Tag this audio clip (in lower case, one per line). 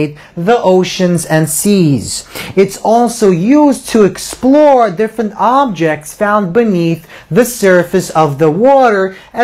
speech